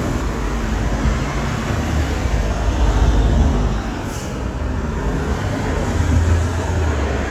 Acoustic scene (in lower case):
street